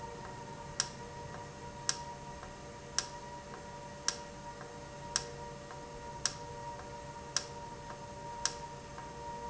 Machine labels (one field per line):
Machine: valve